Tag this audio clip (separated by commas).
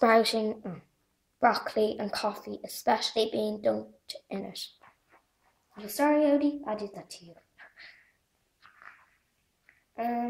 Speech